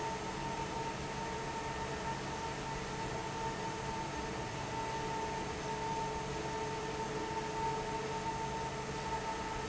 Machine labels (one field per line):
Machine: fan